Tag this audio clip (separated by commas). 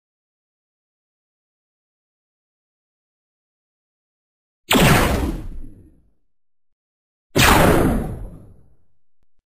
Sound effect